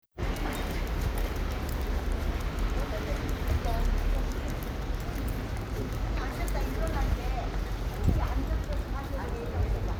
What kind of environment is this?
residential area